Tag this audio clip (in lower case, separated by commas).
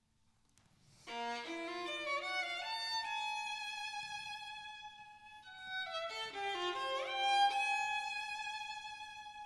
music, fiddle, musical instrument